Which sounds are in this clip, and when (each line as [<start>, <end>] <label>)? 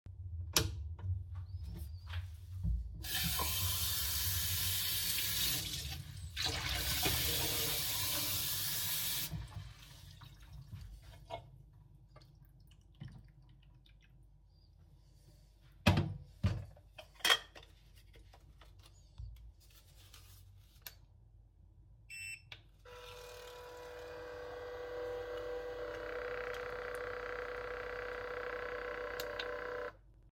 [0.33, 1.00] light switch
[2.94, 9.46] running water
[20.69, 21.06] coffee machine
[22.01, 30.07] coffee machine